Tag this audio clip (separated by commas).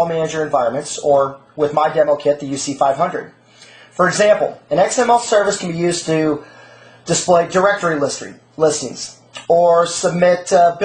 Speech